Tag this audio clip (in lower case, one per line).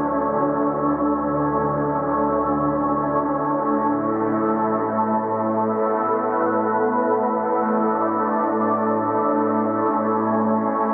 music